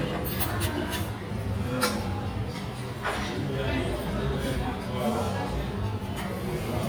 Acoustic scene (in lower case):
restaurant